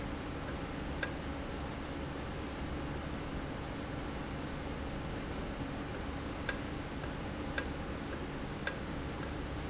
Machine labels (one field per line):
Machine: valve